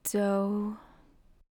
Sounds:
human voice, speech, woman speaking

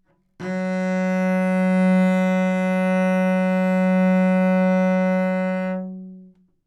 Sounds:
music, bowed string instrument, musical instrument

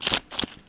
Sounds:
home sounds, scissors

